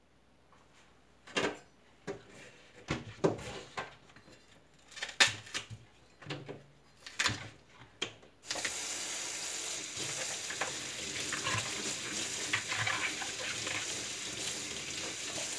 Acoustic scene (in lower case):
kitchen